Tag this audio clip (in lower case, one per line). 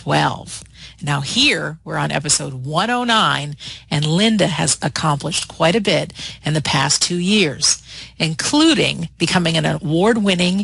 speech